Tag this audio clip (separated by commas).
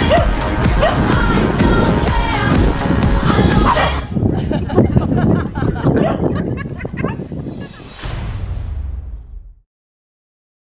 Music